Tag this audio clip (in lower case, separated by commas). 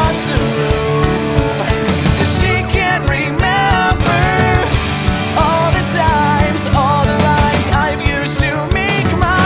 music, exciting music